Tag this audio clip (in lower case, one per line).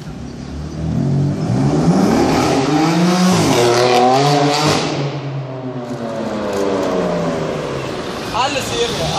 speech